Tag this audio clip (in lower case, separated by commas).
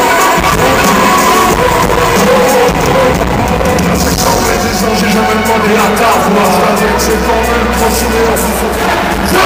hip hop music, music